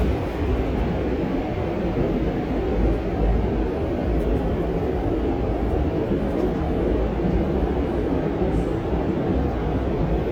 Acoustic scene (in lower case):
subway train